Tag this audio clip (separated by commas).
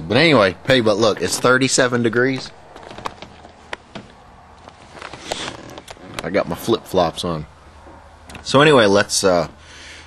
Speech